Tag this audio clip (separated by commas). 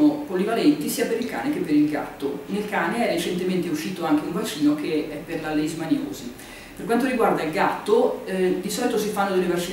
Speech